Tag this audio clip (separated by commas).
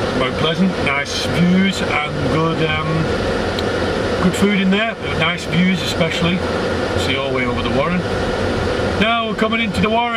Speech, outside, urban or man-made